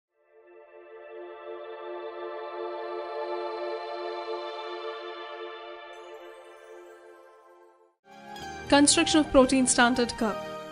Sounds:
ambient music

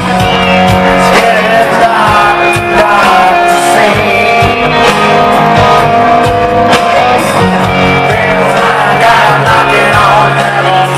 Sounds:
music

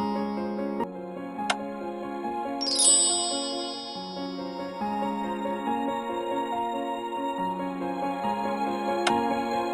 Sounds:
music

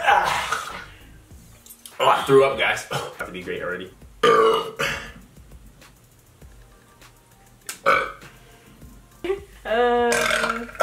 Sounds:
people burping

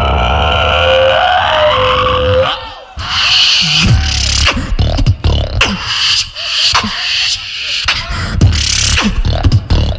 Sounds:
music, speech

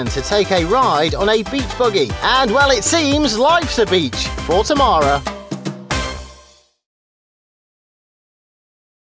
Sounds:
music, speech

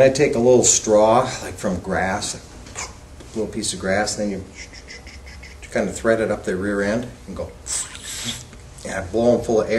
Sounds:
speech

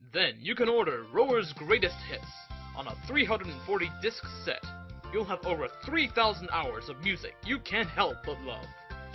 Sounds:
music, speech

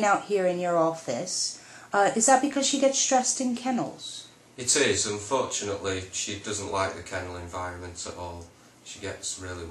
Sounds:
speech

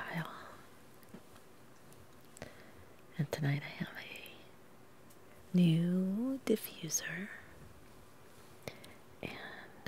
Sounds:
speech

